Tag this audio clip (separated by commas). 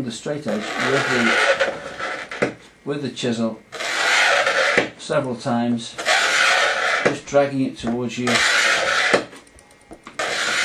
Speech, inside a small room